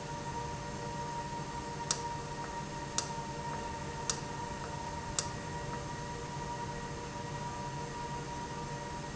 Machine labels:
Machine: valve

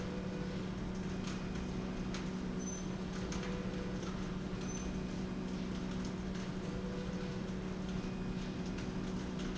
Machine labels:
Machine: slide rail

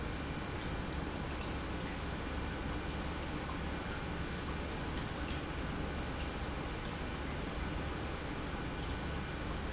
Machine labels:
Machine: pump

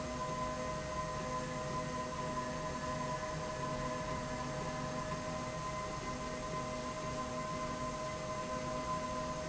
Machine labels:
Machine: slide rail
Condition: normal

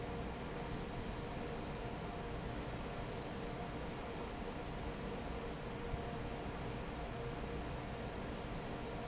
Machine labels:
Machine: fan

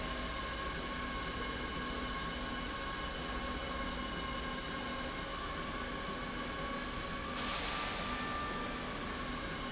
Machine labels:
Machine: slide rail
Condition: normal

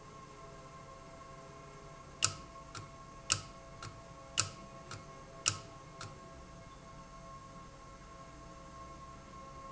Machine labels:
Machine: valve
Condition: abnormal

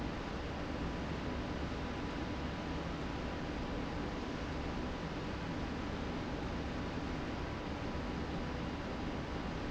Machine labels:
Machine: slide rail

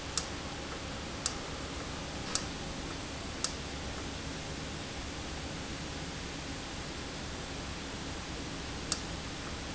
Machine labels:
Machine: valve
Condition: normal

